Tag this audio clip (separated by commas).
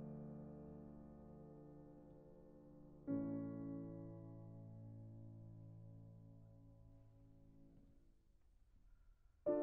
Music